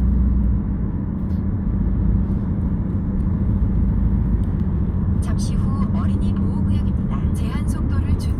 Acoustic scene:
car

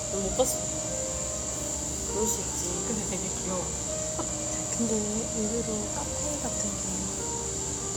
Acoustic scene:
cafe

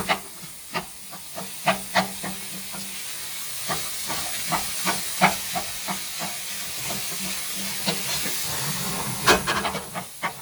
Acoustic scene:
kitchen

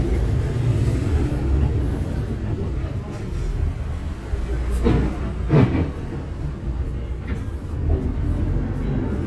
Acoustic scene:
bus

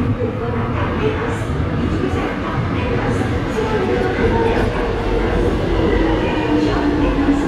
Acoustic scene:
subway station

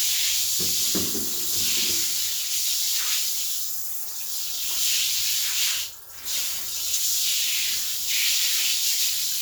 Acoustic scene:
restroom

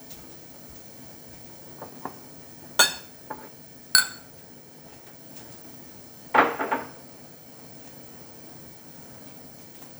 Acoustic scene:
kitchen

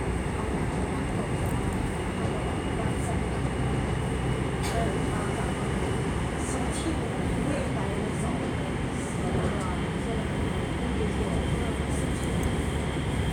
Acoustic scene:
subway train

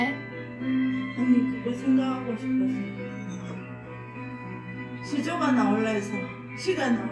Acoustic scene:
cafe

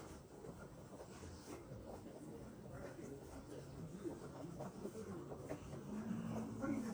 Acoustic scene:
residential area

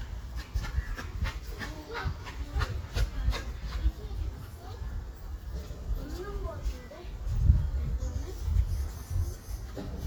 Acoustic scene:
park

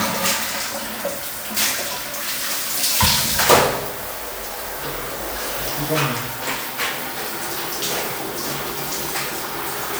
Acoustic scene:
restroom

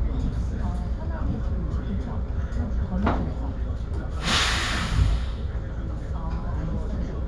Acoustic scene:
bus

